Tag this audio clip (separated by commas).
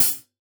Music, Percussion, Musical instrument, Cymbal, Hi-hat